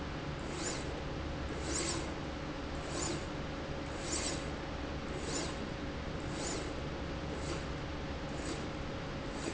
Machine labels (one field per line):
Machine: slide rail